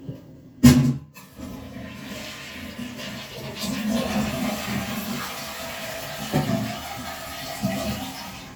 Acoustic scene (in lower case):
restroom